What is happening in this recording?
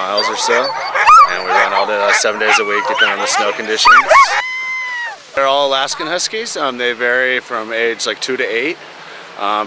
A man speaks, several dogs bark